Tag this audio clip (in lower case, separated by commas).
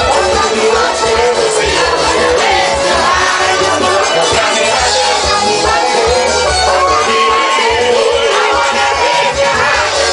music